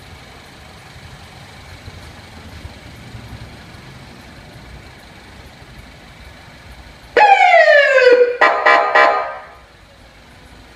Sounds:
police car (siren)
car
emergency vehicle
siren
vehicle

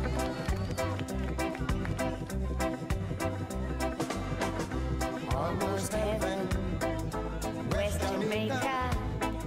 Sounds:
male singing
female singing
music

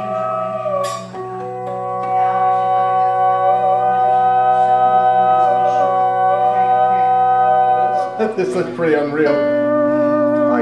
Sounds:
music
speech

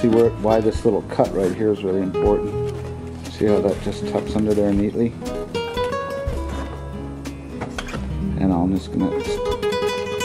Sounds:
mandolin
speech
music

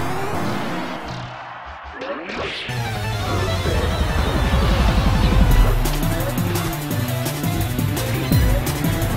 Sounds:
music

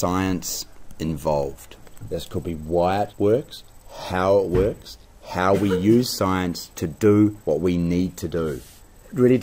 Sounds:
speech

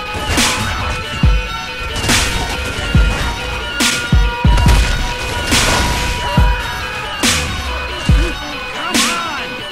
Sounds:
music

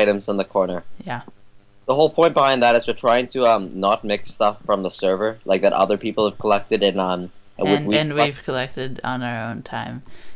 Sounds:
speech

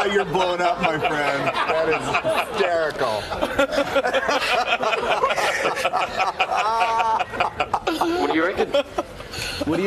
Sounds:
speech

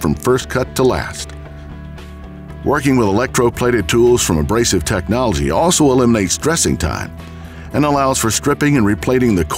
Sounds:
speech
music

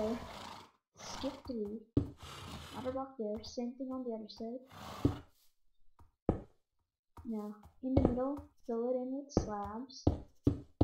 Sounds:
speech

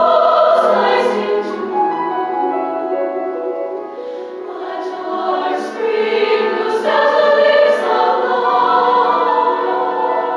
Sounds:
music

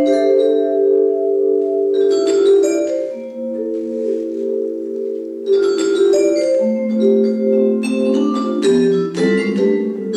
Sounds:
music

